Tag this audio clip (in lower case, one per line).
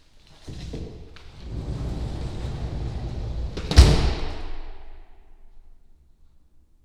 slam
domestic sounds
door